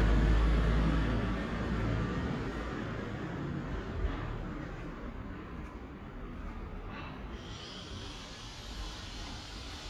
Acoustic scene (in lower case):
residential area